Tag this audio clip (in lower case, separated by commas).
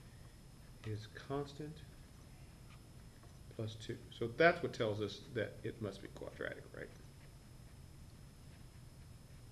speech